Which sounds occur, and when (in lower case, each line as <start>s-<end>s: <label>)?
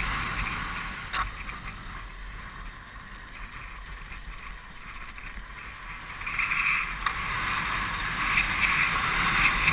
0.0s-9.7s: motorcycle
1.0s-1.2s: generic impact sounds
7.0s-7.0s: tick